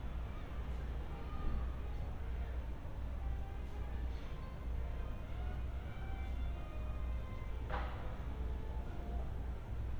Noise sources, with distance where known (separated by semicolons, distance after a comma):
music from a fixed source, far